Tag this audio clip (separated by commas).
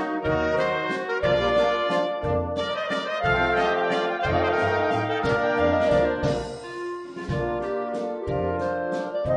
Music, Jazz